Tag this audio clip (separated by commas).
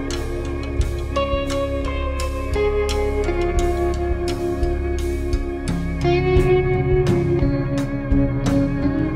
Steel guitar, Music